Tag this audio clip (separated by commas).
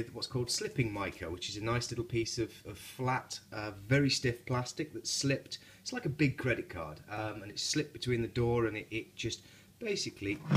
Speech